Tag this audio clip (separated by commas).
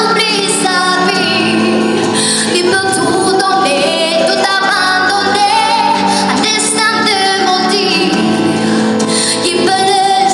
Female singing, Music, Singing